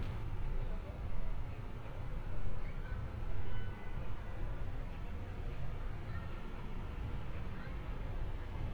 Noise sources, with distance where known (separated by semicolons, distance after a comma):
car horn, far